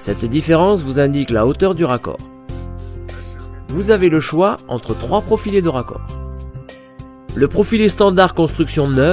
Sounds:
Music, Speech

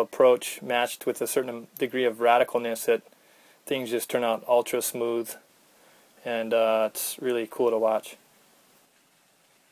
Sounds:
Speech

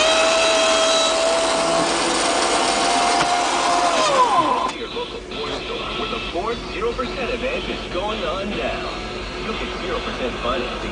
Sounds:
Car, Speech, Vehicle, Music

